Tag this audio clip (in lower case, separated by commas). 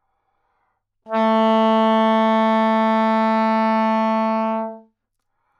music, musical instrument, woodwind instrument